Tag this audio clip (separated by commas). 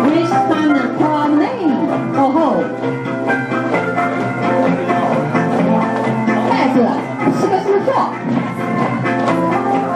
Speech, Music